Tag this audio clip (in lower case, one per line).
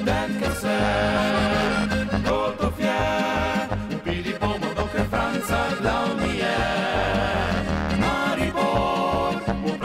accordion
traditional music
musical instrument
music